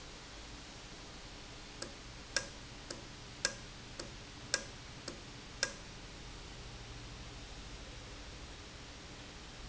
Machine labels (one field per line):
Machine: valve